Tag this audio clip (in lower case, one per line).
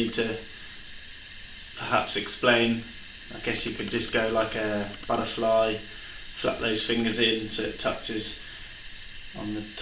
speech